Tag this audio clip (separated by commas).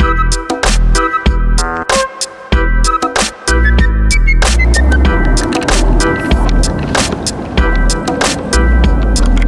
Music, Progressive rock